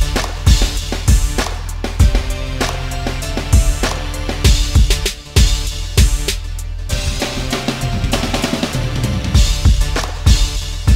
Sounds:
Music

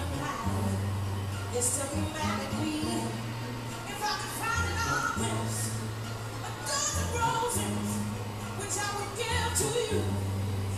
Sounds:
Music, Blues

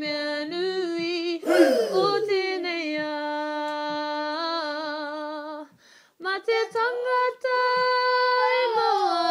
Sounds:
Female singing, Child singing

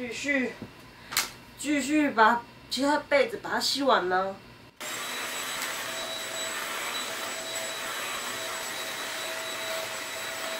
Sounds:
vacuum cleaner cleaning floors

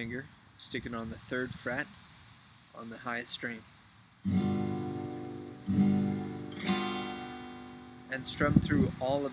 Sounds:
Musical instrument, Speech, Strum, Music, Plucked string instrument, Guitar

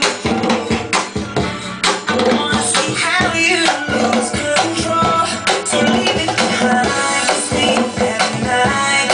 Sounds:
Drum, Drum kit, Musical instrument, Percussion

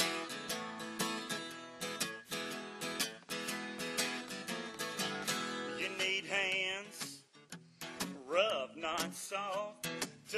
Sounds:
Music, Country, Male singing

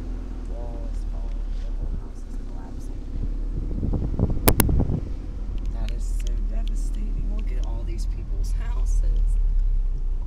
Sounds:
Wind, Car, Vehicle

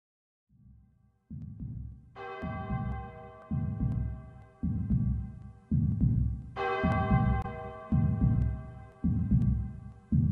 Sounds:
Throbbing

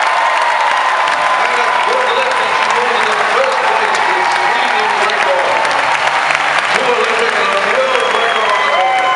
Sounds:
Speech

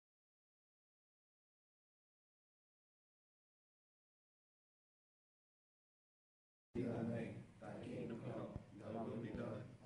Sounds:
Speech

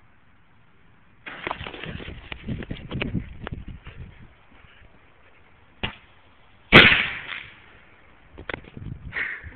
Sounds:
Fireworks

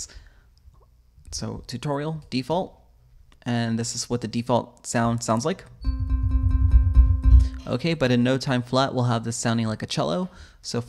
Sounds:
Speech, Sound effect

